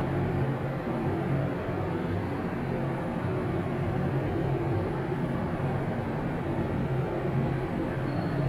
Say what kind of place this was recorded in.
elevator